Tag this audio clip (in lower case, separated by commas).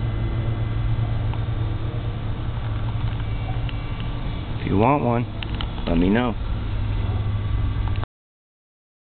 speech